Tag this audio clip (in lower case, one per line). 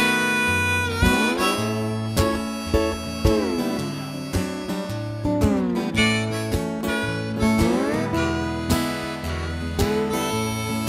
music